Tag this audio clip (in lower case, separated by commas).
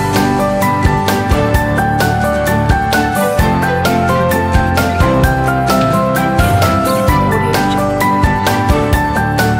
music